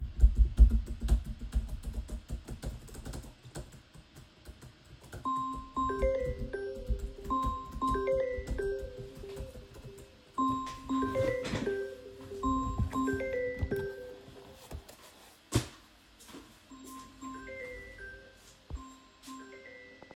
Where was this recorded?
bedroom